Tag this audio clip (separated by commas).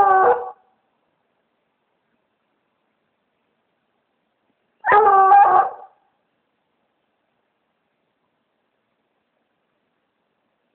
dog baying